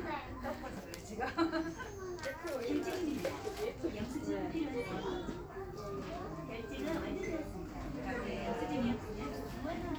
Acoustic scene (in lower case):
crowded indoor space